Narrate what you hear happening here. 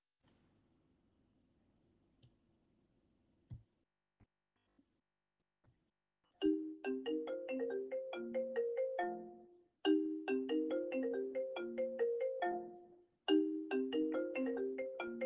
Silence. Suddenly phone starts ringing. ringing continous